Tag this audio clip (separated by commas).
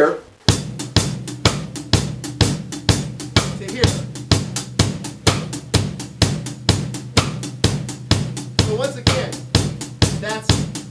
Percussion, Drum kit, Snare drum, Drum, Rimshot, Bass drum